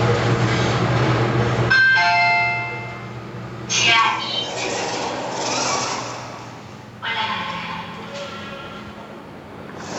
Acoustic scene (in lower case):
elevator